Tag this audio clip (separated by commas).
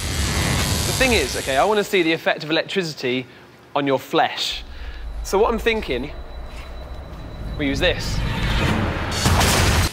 Music, Speech